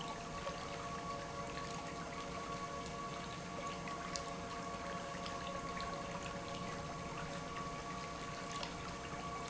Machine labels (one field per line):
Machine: pump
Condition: normal